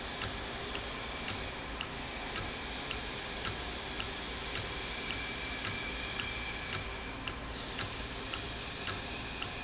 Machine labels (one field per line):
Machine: valve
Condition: normal